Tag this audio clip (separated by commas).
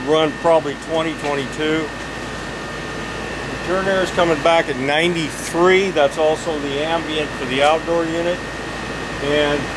Speech, White noise